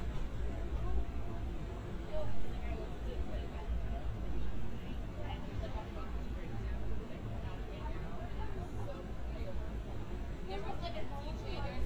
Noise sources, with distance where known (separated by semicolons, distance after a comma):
person or small group talking, near